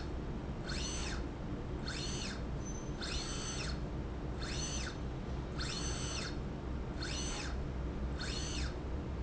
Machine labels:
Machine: slide rail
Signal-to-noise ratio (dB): -6 dB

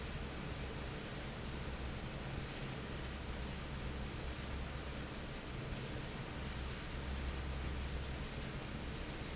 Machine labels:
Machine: fan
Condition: normal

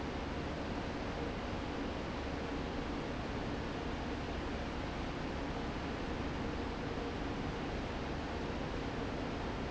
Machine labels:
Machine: fan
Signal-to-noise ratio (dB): -6 dB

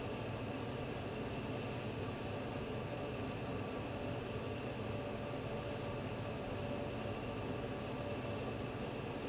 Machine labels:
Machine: fan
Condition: abnormal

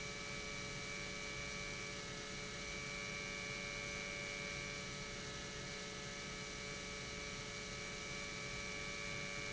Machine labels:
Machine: pump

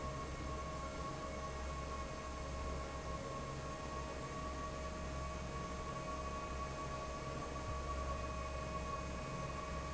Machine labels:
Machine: fan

